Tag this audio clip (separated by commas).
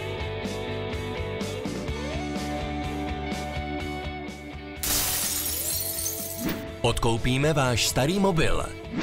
Speech, Music